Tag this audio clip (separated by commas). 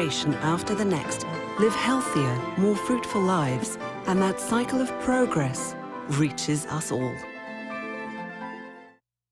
Speech, Music